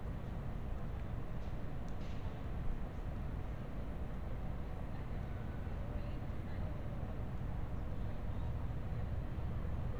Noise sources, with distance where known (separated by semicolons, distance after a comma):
background noise